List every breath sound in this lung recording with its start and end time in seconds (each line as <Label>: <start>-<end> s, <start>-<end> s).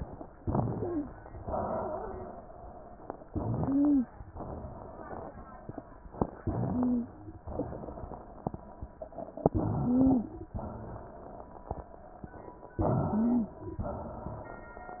Inhalation: 0.33-1.10 s, 3.23-4.21 s, 6.20-7.17 s, 9.37-10.35 s, 12.74-13.62 s
Exhalation: 1.33-2.70 s, 4.32-5.76 s, 7.49-8.94 s, 10.47-12.11 s, 13.78-15.00 s
Stridor: 0.70-1.10 s, 3.58-4.12 s, 6.60-7.14 s, 9.80-10.33 s, 13.09-13.62 s